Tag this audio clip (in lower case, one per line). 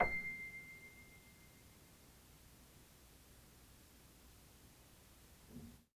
music
piano
keyboard (musical)
musical instrument